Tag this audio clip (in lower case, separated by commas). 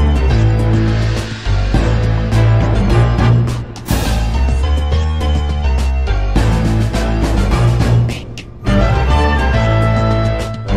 music